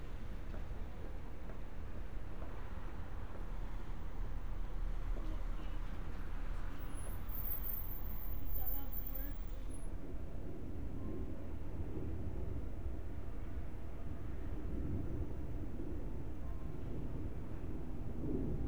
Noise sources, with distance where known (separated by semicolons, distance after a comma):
background noise